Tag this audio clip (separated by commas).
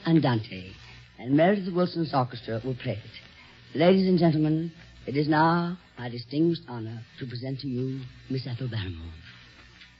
Speech